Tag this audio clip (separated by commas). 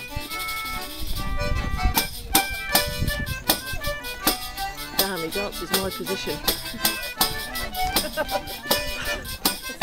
Music, Speech